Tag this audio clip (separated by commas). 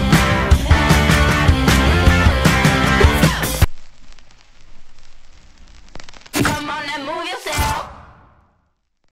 Music